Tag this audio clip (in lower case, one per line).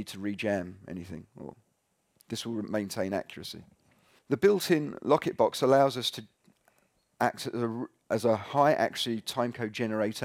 speech